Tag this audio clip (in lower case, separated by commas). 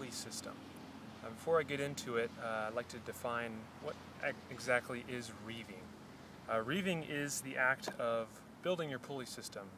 speech